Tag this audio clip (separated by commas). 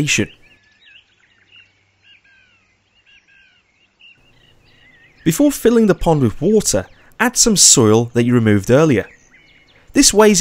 Speech